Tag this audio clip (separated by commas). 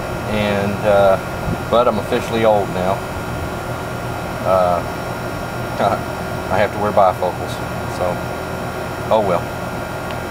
Speech